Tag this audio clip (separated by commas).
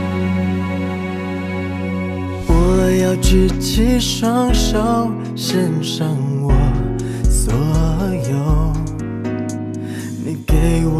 Music